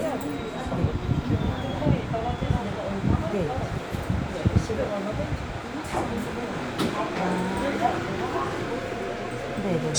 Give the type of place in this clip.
subway train